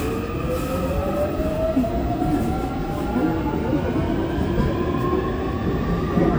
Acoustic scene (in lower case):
subway train